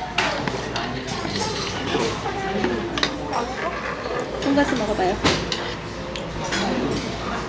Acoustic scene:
restaurant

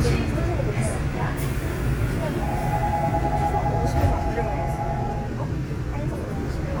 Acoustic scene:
subway train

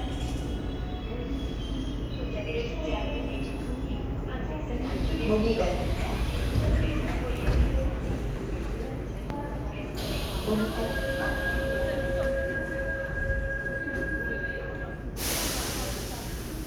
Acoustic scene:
subway station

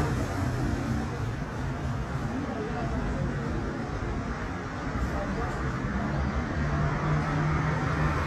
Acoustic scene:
street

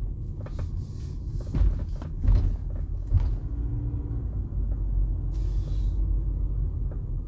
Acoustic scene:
car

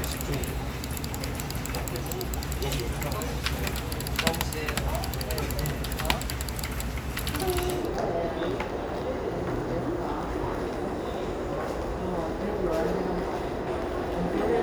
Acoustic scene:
crowded indoor space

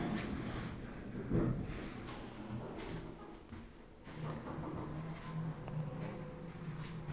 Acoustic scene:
elevator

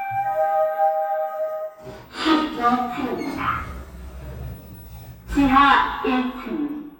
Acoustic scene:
elevator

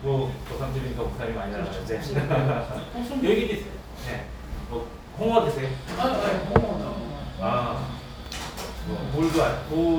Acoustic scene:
restaurant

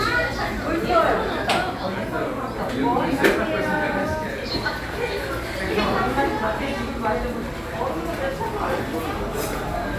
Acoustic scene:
cafe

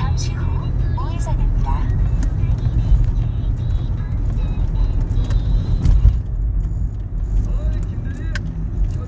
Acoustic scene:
car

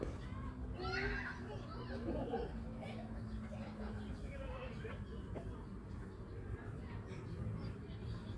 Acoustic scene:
park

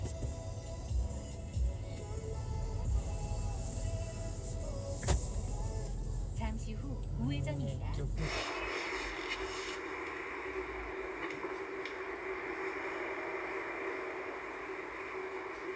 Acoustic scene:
car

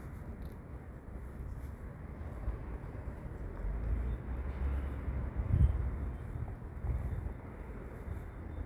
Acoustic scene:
street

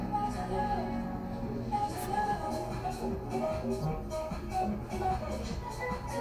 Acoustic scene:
cafe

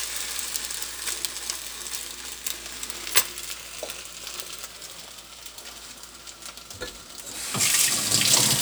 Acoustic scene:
kitchen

